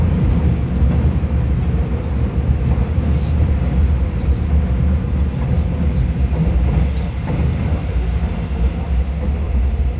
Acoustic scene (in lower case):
subway train